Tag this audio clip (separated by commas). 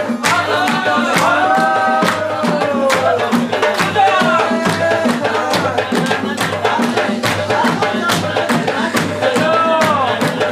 Music